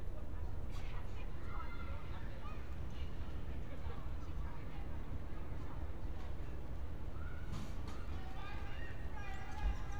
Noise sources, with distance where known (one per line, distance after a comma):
person or small group talking, far